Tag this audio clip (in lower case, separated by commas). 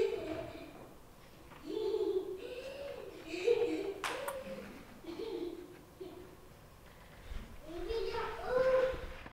speech